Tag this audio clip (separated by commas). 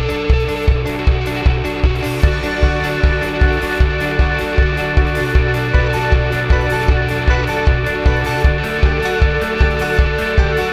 Music